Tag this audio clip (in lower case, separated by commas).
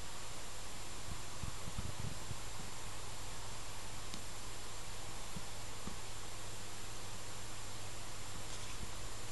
inside a small room